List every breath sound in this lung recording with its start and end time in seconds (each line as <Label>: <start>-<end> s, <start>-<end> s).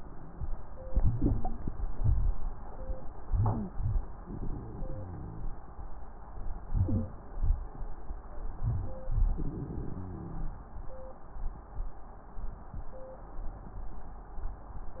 Inhalation: 0.84-1.74 s, 3.29-4.18 s, 6.62-7.41 s
Exhalation: 1.77-2.67 s, 4.27-5.42 s, 8.62-10.56 s
Wheeze: 0.82-1.78 s, 3.25-4.20 s, 6.62-7.41 s
Crackles: 4.25-5.44 s, 8.57-10.62 s